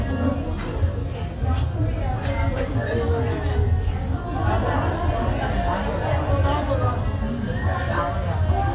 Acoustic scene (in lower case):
restaurant